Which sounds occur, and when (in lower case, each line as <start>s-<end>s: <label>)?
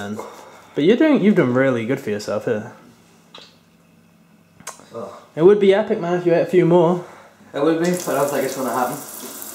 0.0s-0.3s: man speaking
0.0s-9.5s: conversation
0.0s-9.5s: mechanisms
0.2s-0.8s: breathing
0.7s-2.7s: man speaking
3.3s-3.6s: human sounds
4.6s-4.7s: human sounds
4.9s-5.2s: man speaking
5.3s-7.0s: man speaking
7.0s-7.3s: breathing
7.5s-9.0s: man speaking
7.8s-9.5s: sink (filling or washing)